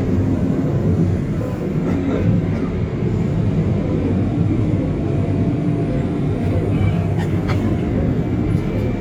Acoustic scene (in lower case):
subway train